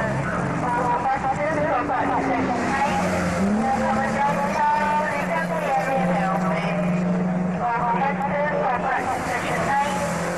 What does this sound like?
Someone speaks over a loud speaker and car drives by